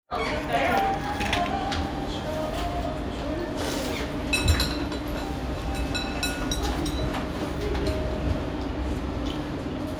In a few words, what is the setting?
restaurant